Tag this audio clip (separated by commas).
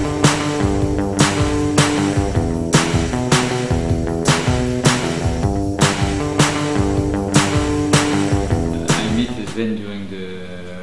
Speech, Music